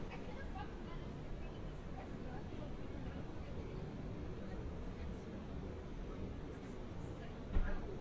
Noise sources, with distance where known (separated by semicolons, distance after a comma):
person or small group talking, far